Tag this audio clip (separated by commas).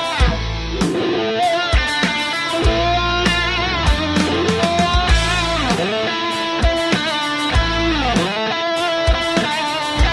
Music